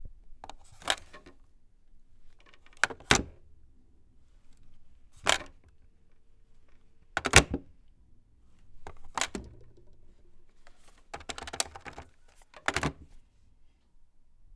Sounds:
Telephone, Alarm

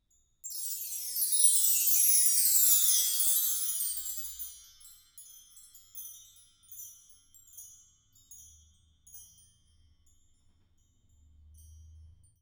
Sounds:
Chime, Bell

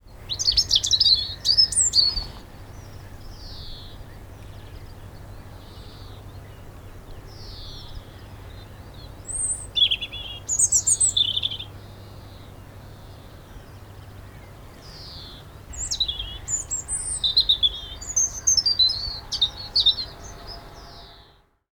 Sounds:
Wild animals, Bird, Animal, bird song

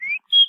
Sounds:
Wild animals, Bird, Animal, bird call, Chirp

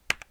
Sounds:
home sounds, Typing

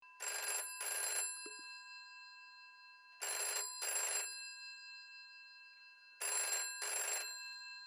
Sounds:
Alarm, Telephone

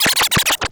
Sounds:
Music, Scratching (performance technique), Musical instrument

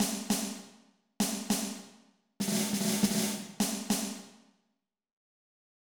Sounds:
Music, Drum, Musical instrument, Snare drum, Percussion

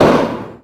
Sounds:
Explosion

